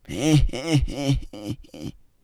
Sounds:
human voice
laughter

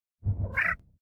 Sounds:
meow
animal
pets
cat

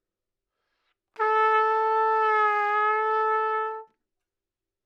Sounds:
brass instrument
music
trumpet
musical instrument

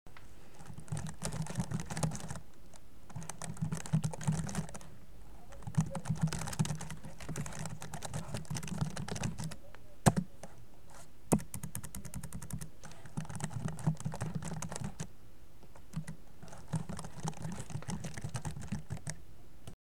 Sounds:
home sounds
typing

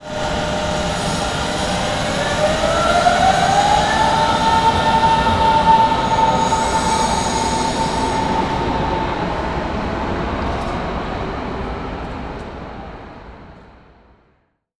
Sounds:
vehicle
rail transport
train

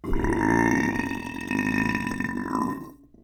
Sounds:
eructation

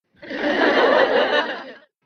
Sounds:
chuckle
laughter
human voice

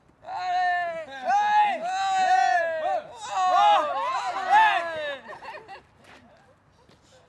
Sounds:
cheering
human group actions

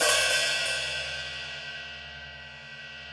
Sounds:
cymbal
percussion
music
musical instrument
hi-hat

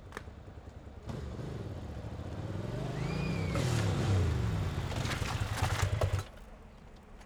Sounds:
motor vehicle (road)
engine
vehicle
engine starting
motorcycle

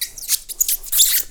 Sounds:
squeak

